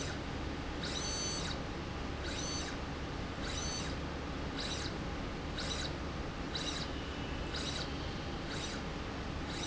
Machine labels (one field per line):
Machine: slide rail